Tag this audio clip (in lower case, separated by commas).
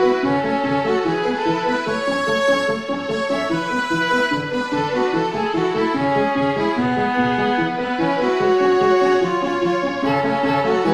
music, soundtrack music